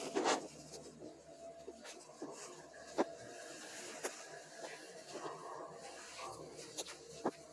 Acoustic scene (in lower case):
elevator